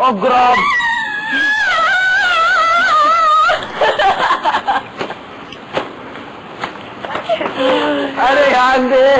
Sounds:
Speech, inside a large room or hall

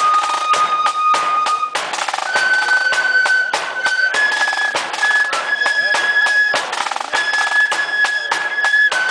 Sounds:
Music, Flute

